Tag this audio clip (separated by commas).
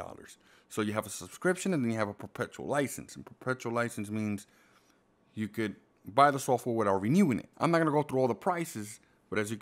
Speech